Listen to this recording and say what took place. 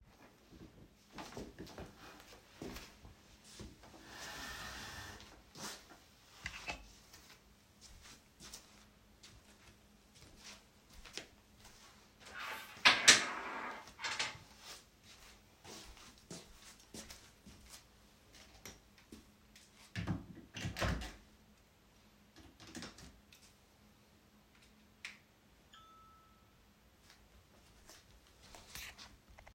I walked across the bedroom while my phone produced a notification sound.